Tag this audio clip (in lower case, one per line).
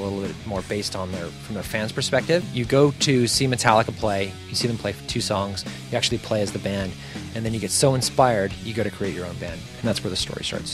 music
speech
plucked string instrument
strum
guitar
musical instrument